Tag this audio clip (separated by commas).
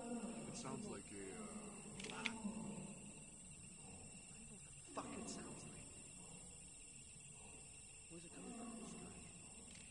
Speech